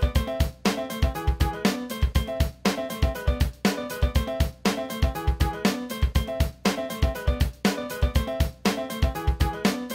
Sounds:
Music

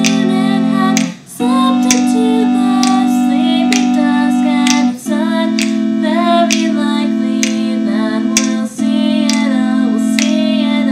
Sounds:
Music

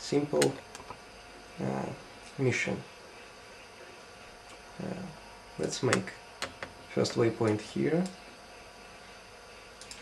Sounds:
Speech

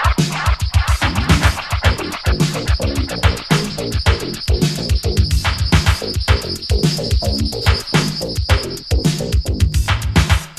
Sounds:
Music

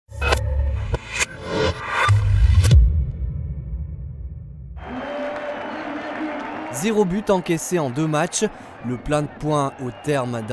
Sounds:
Music, Speech

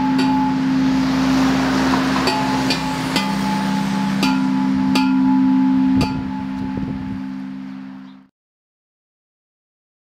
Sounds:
Tubular bells

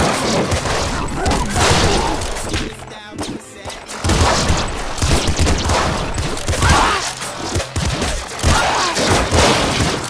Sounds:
Gunshot

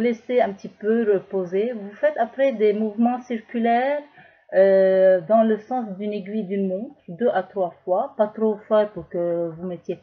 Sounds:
Speech

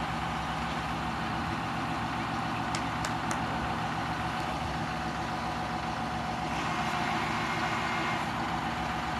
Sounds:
Truck, Vehicle

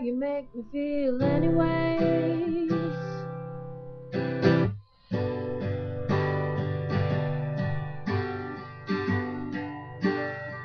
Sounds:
Plucked string instrument, Musical instrument, Guitar, Acoustic guitar, Music, Singing

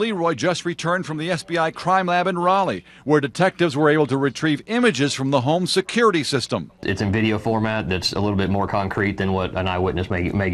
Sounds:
Speech

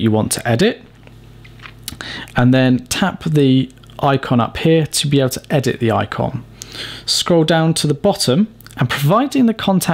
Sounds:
Speech

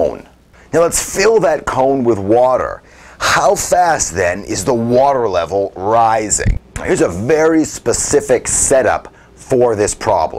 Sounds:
Speech

